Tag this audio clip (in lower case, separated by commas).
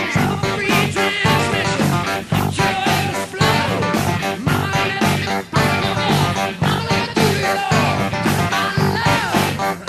music